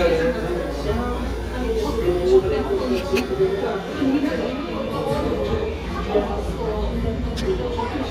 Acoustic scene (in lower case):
cafe